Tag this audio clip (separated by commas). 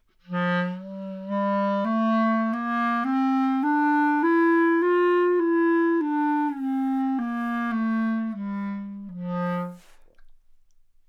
Music, Musical instrument, woodwind instrument